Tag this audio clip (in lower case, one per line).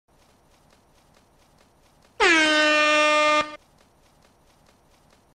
truck horn